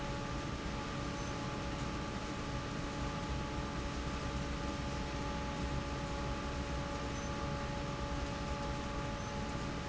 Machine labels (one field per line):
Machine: fan